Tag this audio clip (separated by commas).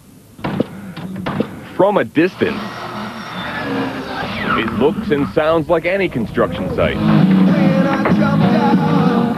Music, Speech